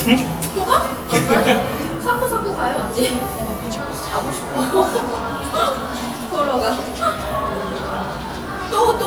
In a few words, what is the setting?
cafe